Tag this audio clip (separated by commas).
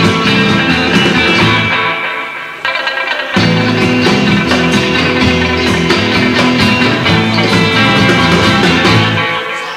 Music